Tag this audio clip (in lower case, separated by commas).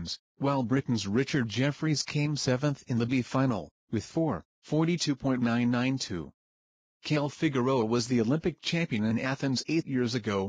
speech